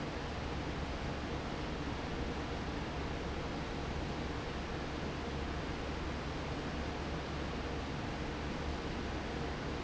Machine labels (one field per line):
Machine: fan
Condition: normal